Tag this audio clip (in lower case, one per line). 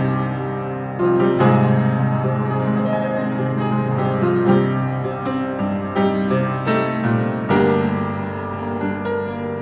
music